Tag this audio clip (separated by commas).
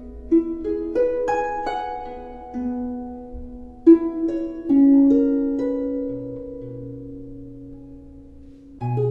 Music